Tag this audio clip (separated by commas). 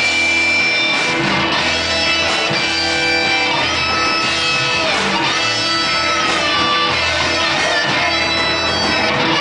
Guitar, Electric guitar, Musical instrument, Plucked string instrument, Music